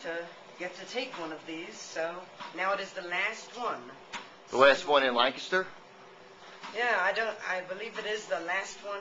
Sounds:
Speech, Conversation

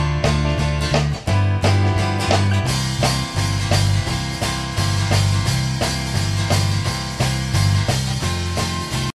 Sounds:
Guitar, Music, Musical instrument

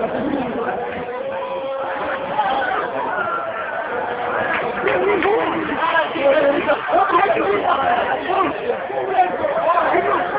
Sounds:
Speech

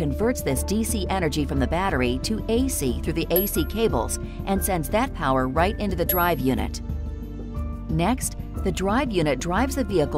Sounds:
Speech, Music

